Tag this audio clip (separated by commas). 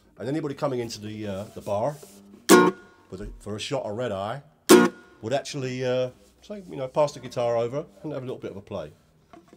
Ukulele, Speech, Music, Plucked string instrument, Musical instrument